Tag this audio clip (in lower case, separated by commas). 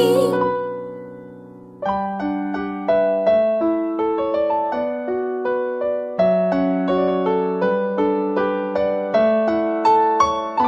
music